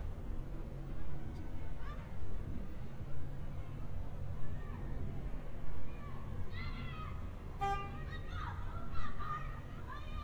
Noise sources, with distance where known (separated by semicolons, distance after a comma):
car horn, near; person or small group shouting, far